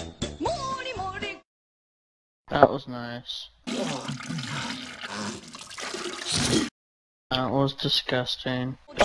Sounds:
music, speech

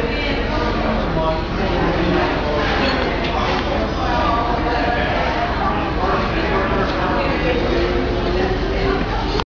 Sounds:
speech

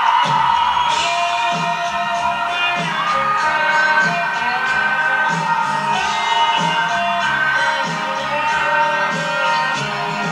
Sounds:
music

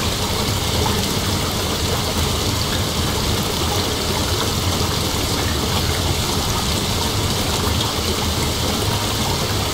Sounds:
raining, raindrop, rain on surface, rain

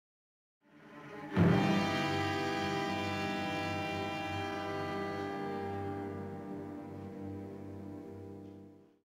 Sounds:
sound effect, music

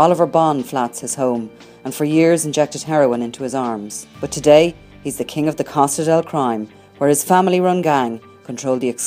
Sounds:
speech, music

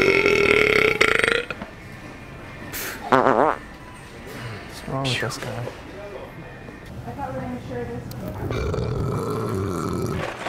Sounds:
people farting

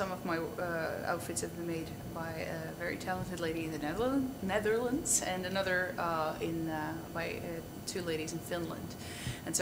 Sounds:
female speech

